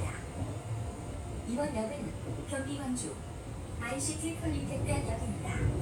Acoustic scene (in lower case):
subway train